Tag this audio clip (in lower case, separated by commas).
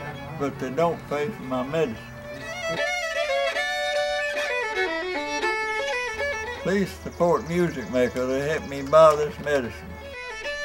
music, speech